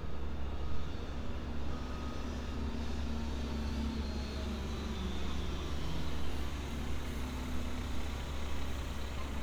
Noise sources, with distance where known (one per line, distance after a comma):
engine of unclear size